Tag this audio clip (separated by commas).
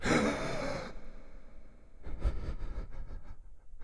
Respiratory sounds, Breathing